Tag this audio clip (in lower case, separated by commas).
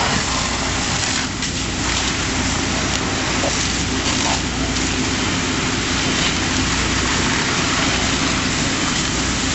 outside, urban or man-made, fire